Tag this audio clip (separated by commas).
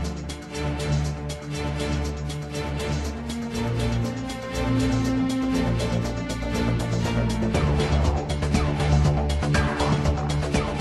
Music